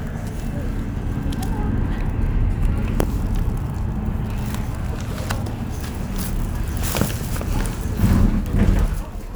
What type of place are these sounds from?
bus